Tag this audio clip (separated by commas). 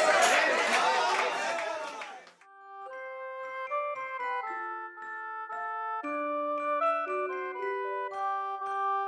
Music, Speech, outside, urban or man-made